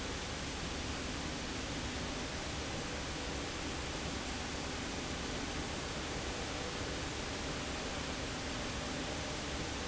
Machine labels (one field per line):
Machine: slide rail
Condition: normal